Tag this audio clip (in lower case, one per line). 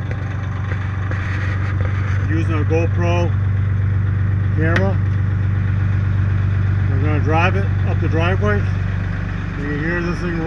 speech
vehicle